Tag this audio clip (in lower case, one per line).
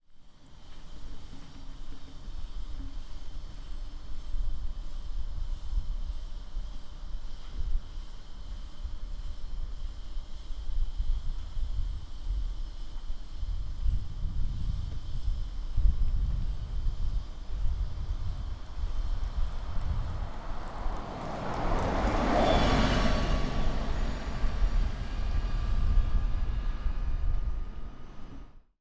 vehicle
bus
motor vehicle (road)